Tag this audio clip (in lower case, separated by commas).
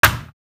hands, thump